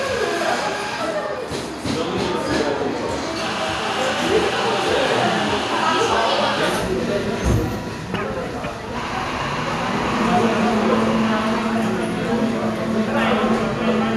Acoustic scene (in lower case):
cafe